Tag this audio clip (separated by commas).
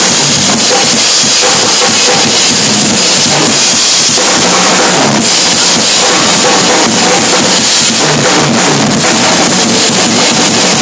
Music, Percussion